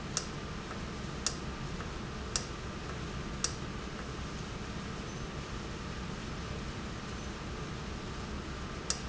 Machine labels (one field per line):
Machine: valve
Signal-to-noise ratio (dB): -6 dB